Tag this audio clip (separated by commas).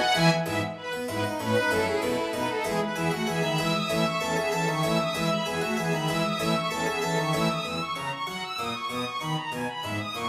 Bowed string instrument, Violin